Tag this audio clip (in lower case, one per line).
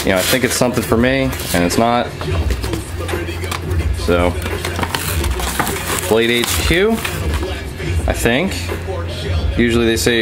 music
speech